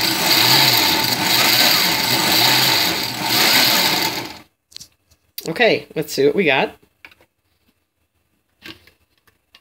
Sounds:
blender, speech

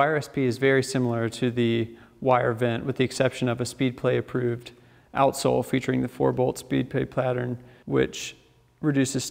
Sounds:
speech

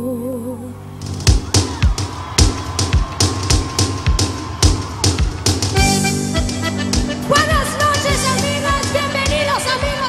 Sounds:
music

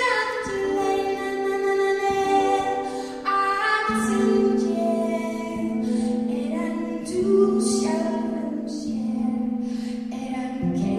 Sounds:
child speech, music

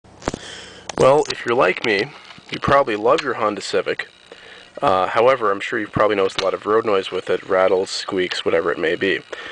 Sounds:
speech

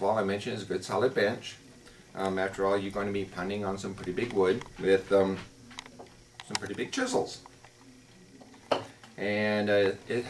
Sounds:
speech

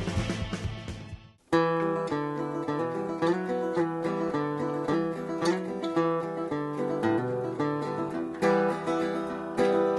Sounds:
bass guitar, plucked string instrument, guitar, musical instrument, strum, music

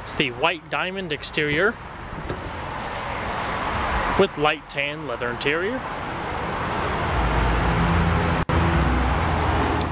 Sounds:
vehicle, speech

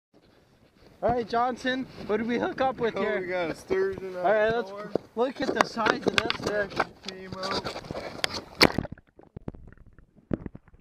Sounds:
speech, outside, rural or natural

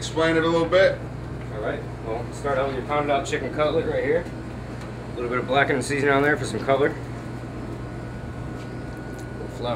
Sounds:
speech

